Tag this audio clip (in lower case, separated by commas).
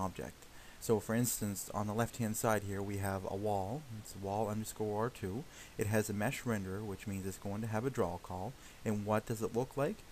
speech